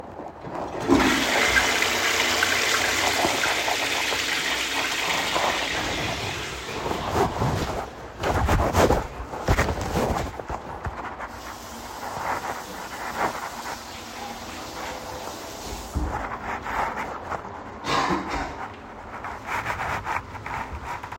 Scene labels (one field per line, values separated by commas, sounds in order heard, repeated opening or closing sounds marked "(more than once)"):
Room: lavatory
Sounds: toilet flushing, running water